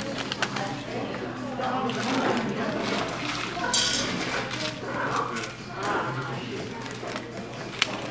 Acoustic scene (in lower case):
crowded indoor space